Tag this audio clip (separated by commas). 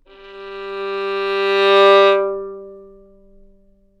Music, Bowed string instrument, Musical instrument